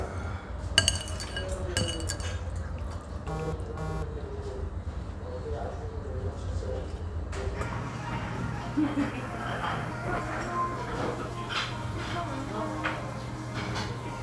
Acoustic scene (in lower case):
restaurant